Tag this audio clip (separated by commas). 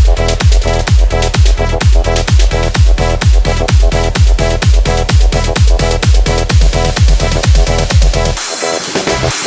Electronic dance music, Music